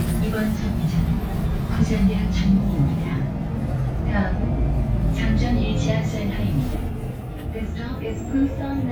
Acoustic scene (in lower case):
bus